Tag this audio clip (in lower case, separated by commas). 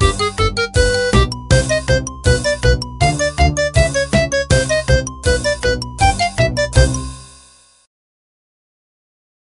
rhythm and blues, music, jingle (music)